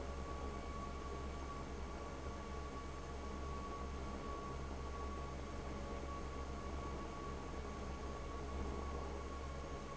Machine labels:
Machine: fan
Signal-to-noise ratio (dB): 6 dB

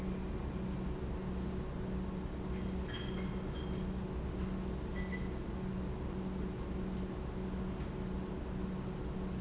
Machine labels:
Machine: pump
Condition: normal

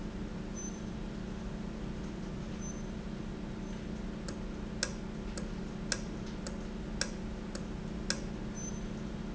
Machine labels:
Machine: valve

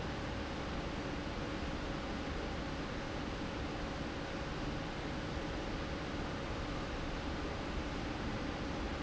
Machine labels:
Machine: fan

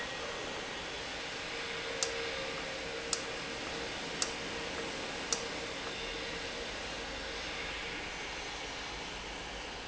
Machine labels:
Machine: valve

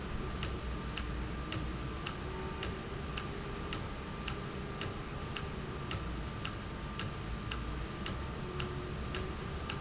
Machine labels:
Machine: valve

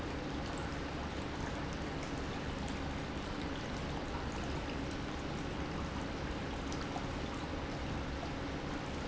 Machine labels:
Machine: pump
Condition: normal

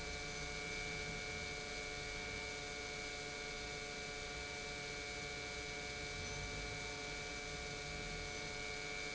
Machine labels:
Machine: pump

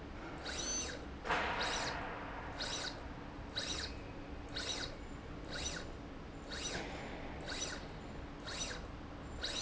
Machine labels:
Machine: slide rail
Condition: abnormal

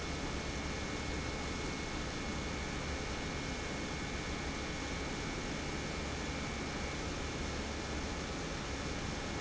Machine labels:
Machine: pump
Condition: normal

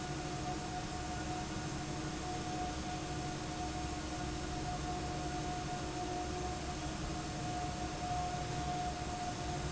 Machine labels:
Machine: fan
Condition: abnormal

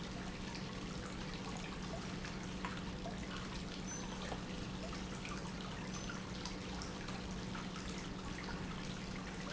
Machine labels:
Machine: pump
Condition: normal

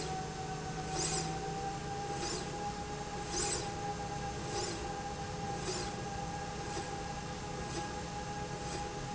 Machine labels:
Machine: slide rail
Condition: normal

